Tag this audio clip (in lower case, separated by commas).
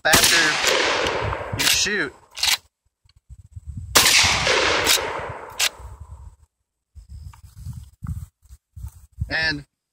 speech, outside, rural or natural